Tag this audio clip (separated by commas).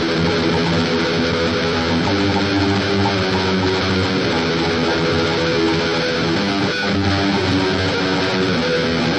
Acoustic guitar, Strum, Music, Musical instrument